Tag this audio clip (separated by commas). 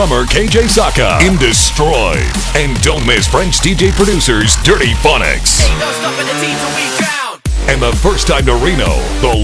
Speech, Music